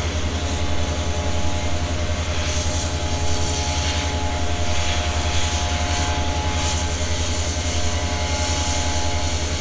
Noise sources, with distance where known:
unidentified impact machinery, near

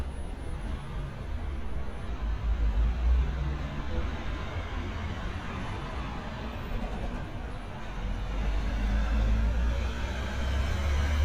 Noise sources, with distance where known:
large-sounding engine, near

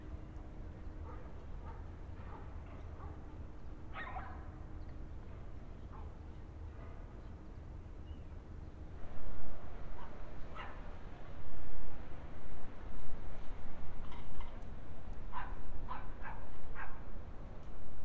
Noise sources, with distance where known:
dog barking or whining, far

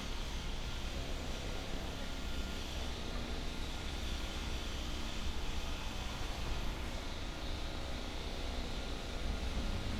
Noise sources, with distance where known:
jackhammer

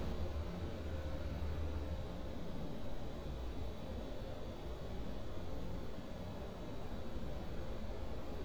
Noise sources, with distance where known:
background noise

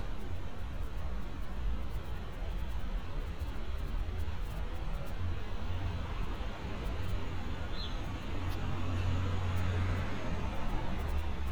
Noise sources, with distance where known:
large-sounding engine, far

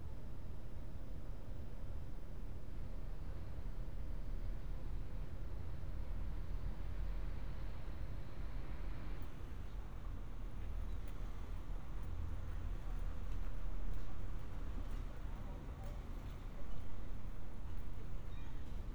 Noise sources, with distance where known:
background noise

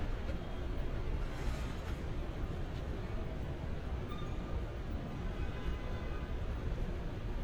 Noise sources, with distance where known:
car horn, far

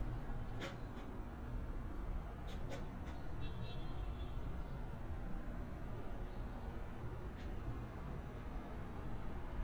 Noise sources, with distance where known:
car horn
unidentified human voice

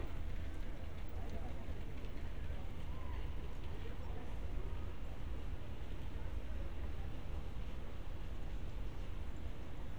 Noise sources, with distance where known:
person or small group talking, far

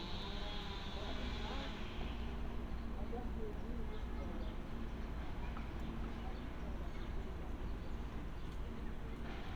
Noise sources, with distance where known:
person or small group talking

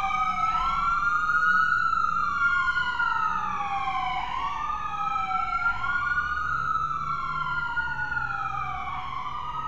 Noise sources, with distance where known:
siren, near

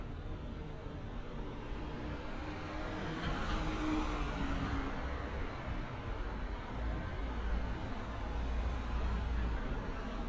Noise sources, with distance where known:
medium-sounding engine

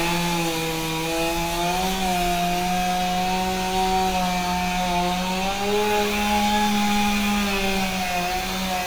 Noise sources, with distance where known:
chainsaw, near

